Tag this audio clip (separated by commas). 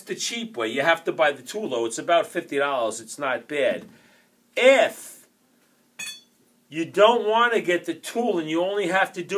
Speech